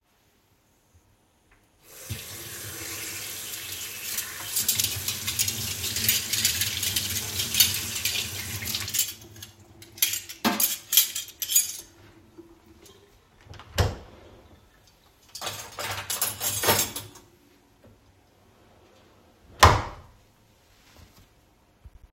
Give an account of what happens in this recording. I turned on the water andstarted rinsing the cutleries. After that, I turned it off and opened the dishwasher. I started loading the cutleries inside the dishwasher and closed it.